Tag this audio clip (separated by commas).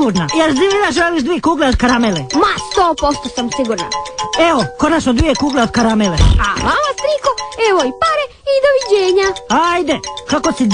Speech, Music